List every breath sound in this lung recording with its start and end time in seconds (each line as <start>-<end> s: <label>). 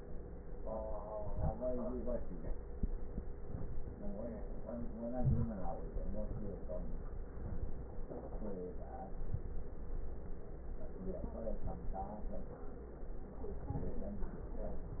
1.19-1.62 s: inhalation
5.08-5.50 s: inhalation